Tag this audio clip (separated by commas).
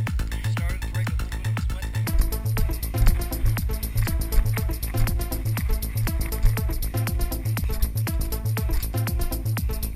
Music, Speech, Run